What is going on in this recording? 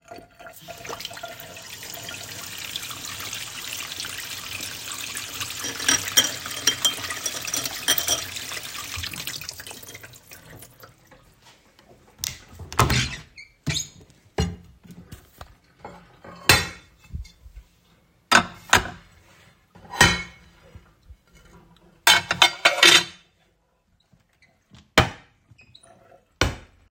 I turn on the tap to wash dishes, move cutlery, and open the cabinet to place dishes inside.